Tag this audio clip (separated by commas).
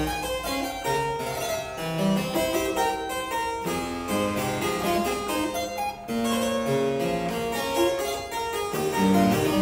playing harpsichord